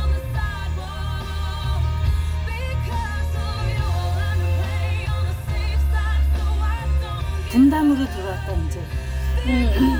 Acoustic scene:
car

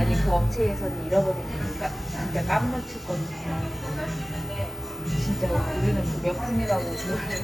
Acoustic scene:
cafe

